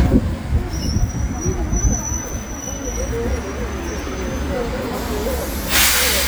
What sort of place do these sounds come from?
street